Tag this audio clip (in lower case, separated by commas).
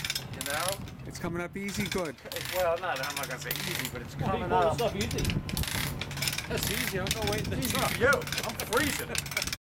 wind, wind noise (microphone)